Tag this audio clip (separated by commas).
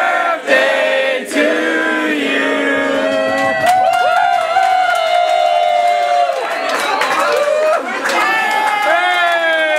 Crowd, Cheering